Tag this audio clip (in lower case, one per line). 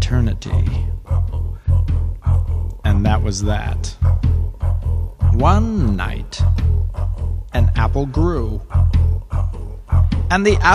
music
speech